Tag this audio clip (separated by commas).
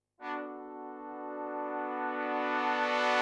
Keyboard (musical), Musical instrument, Music